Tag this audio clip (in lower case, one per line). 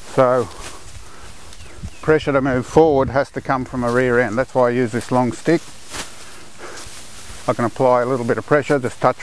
speech